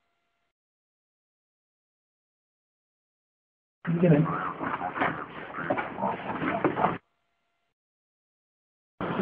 A man speaks as a pig snorts and shuffles